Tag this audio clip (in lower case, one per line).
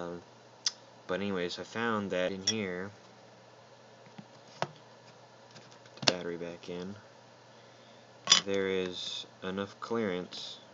speech